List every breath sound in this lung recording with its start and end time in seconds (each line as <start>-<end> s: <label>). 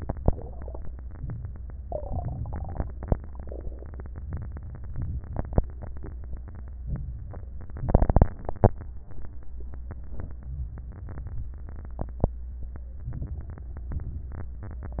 1.21-1.86 s: inhalation
1.86-2.78 s: exhalation
4.28-4.93 s: inhalation
4.98-5.64 s: exhalation
6.86-7.38 s: inhalation
7.43-8.29 s: exhalation
10.42-11.07 s: inhalation
11.08-11.73 s: exhalation
13.10-13.75 s: inhalation
13.74-14.55 s: exhalation